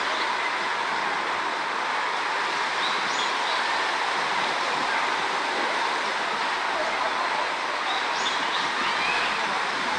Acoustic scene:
park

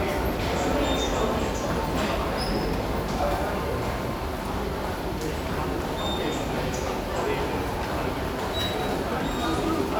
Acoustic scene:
subway station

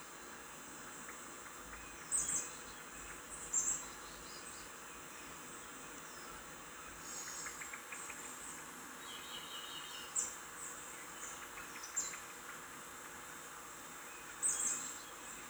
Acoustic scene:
park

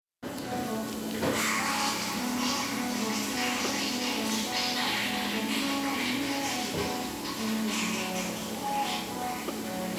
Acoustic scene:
cafe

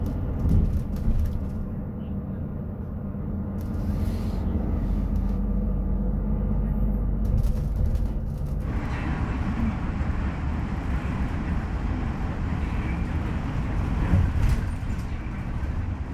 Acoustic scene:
bus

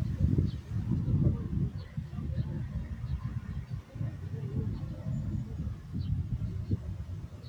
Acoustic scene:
park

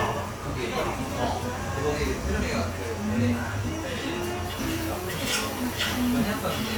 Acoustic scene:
cafe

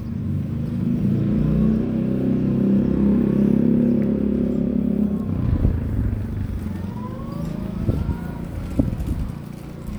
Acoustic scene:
residential area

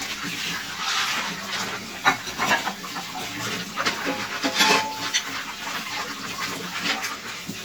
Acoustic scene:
kitchen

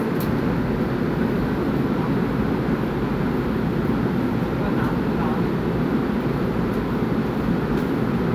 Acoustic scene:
subway train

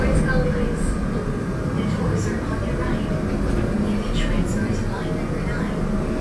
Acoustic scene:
subway train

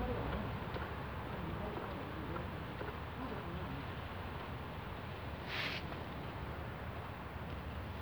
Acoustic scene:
residential area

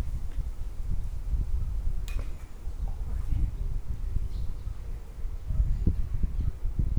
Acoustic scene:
park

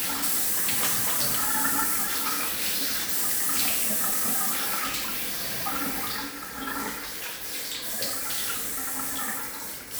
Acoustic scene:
restroom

